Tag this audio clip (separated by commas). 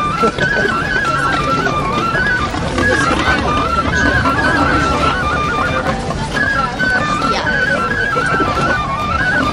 Music, Speech